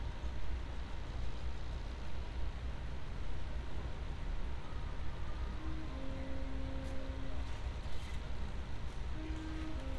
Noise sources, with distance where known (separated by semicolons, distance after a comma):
engine of unclear size